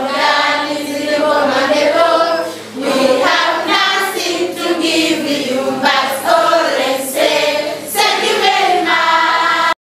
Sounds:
Choir, Child singing

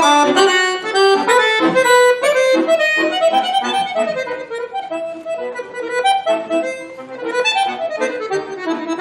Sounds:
Musical instrument, Accordion

